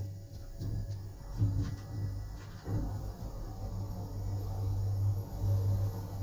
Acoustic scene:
elevator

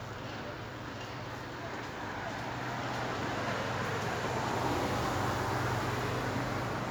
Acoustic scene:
residential area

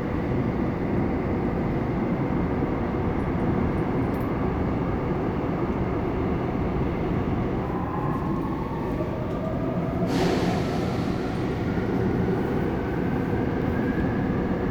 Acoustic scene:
subway train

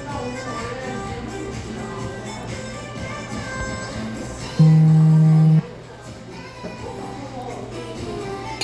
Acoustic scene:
cafe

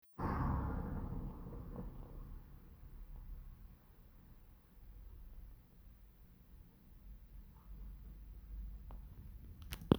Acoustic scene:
residential area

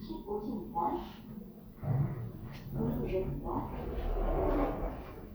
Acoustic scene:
elevator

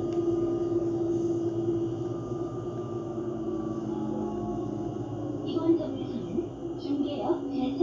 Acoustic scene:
bus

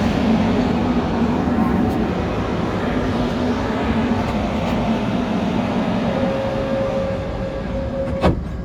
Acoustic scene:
subway train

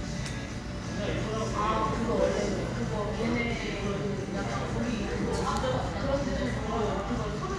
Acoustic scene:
cafe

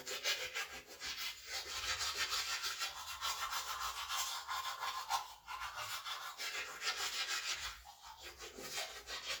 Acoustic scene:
restroom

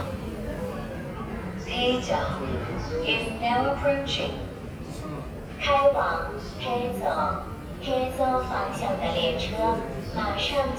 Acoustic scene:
subway station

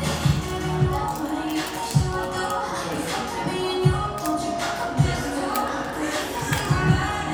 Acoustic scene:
cafe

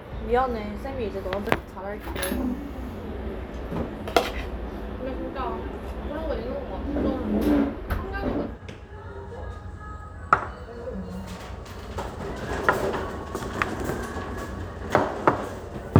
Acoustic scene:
restaurant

